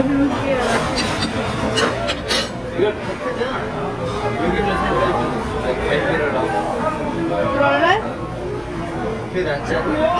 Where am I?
in a restaurant